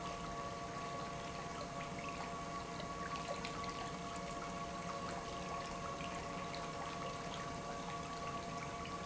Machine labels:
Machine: pump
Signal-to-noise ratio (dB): 0 dB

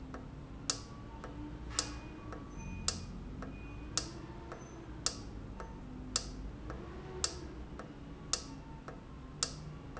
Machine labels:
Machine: valve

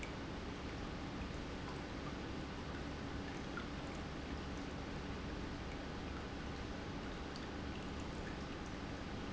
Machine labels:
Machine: pump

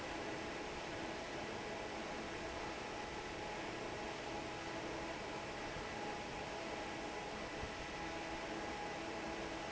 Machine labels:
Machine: fan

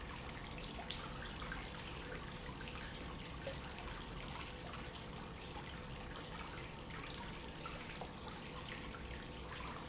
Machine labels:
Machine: pump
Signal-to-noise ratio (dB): 6 dB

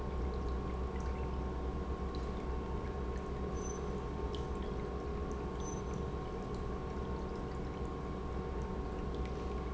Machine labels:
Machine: pump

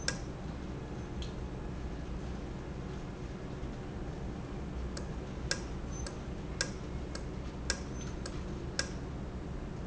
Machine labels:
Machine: valve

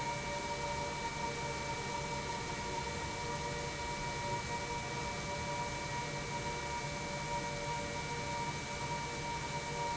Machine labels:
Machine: pump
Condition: normal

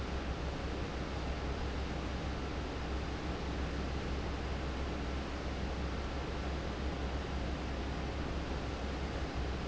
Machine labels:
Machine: fan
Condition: abnormal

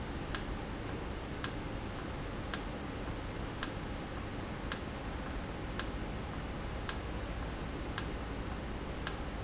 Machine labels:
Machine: valve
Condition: normal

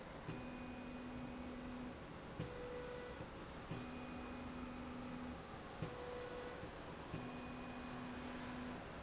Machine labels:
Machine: slide rail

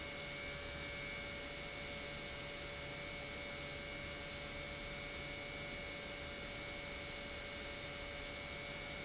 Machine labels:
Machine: pump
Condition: normal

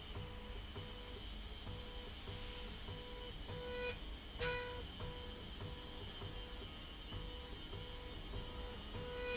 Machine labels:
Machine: slide rail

